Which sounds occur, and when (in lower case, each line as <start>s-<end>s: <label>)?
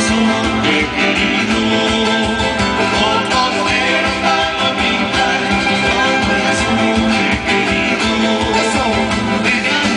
0.0s-9.9s: choir
0.0s-9.9s: music